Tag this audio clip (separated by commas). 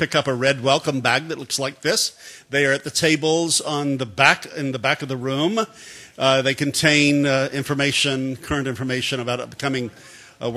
Speech